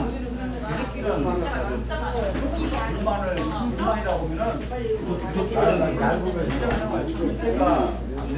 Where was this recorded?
in a crowded indoor space